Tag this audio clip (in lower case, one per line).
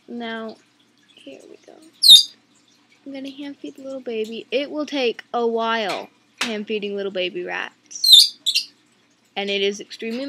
speech